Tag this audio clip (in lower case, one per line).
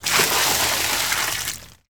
splash
water
liquid